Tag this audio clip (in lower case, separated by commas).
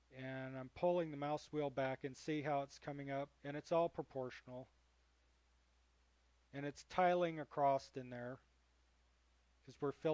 speech